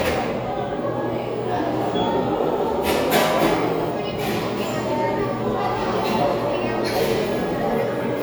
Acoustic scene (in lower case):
cafe